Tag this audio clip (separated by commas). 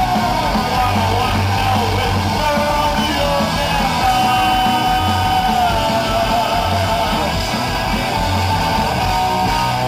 Drum, Music, Singing, Drum kit, Musical instrument